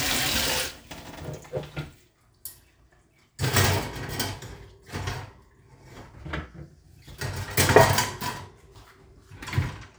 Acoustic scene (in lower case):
kitchen